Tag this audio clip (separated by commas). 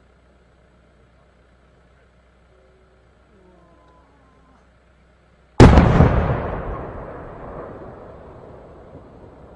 lighting firecrackers